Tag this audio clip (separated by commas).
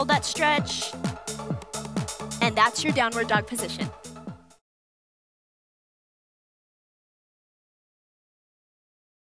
Music, Speech